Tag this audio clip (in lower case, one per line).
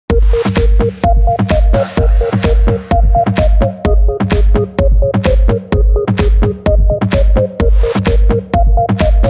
house music